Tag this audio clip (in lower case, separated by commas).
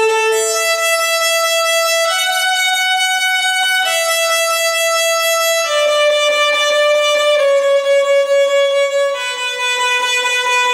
music, violin, musical instrument